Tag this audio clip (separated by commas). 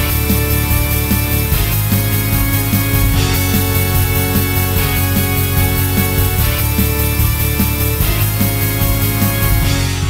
Harpsichord, Music